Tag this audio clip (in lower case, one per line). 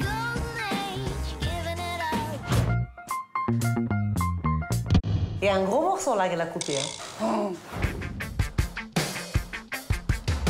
speech
music